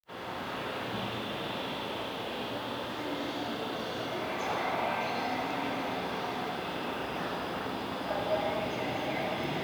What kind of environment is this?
subway station